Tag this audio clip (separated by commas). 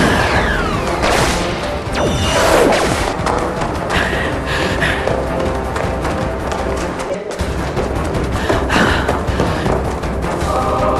Music